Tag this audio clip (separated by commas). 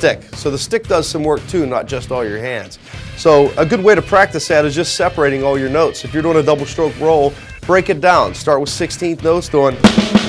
Speech, Strum, Drum kit, Plucked string instrument, Music, Drum, Guitar, Musical instrument